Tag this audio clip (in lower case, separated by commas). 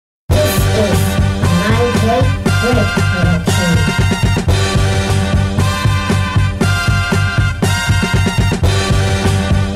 electronic music, music